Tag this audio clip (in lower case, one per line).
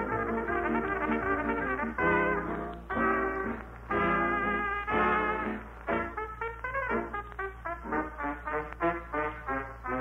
playing trumpet